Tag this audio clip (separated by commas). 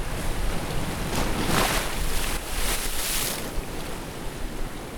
Waves, Water, Ocean